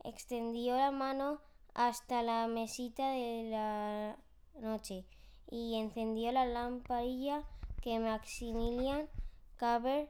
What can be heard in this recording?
speech